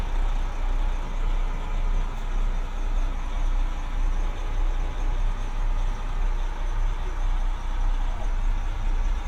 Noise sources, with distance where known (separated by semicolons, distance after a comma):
large-sounding engine, near